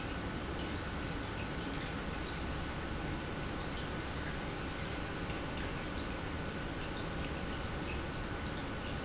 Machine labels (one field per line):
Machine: pump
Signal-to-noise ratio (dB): -6 dB